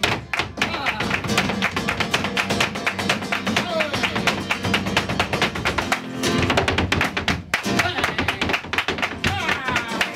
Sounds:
Tap, Music, Music of Latin America, Flamenco

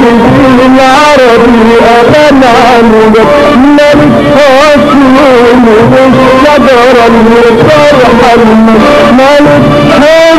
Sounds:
Music

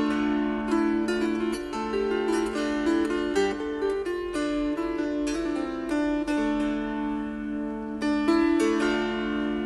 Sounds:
Pizzicato

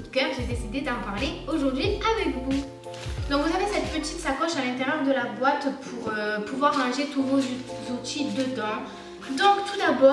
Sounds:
cutting hair with electric trimmers

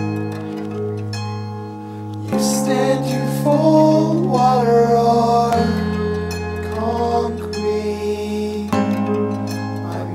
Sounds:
Music

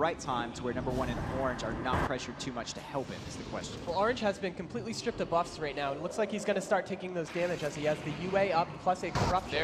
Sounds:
Speech

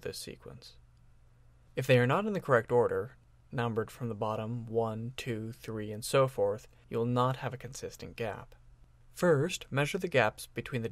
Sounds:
Speech

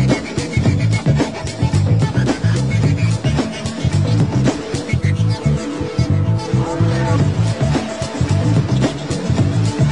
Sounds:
Music

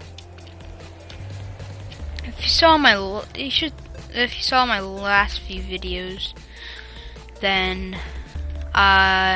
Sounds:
Music, Speech

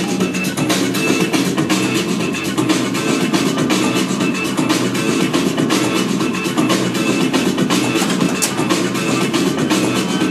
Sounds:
Music

